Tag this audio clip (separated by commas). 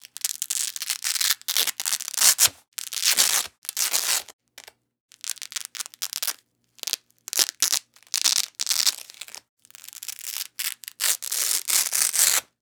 Domestic sounds